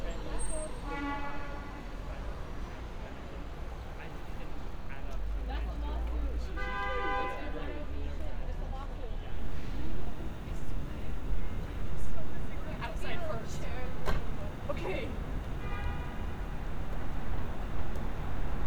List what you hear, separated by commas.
car horn, person or small group talking